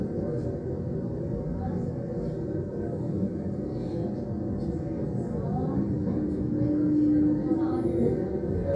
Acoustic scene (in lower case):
subway train